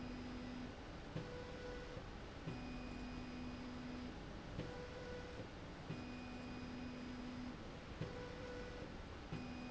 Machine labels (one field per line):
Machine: slide rail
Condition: normal